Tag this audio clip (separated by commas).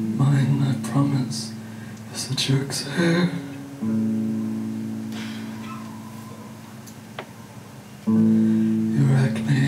Singing, Music